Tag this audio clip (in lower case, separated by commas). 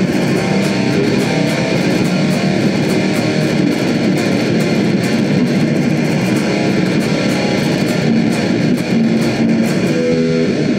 guitar, musical instrument, music, heavy metal, plucked string instrument